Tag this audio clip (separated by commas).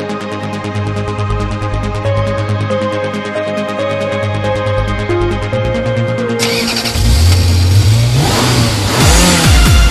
Music, Accelerating, Vehicle